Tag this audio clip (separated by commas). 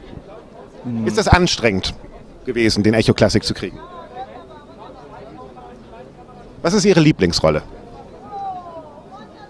Speech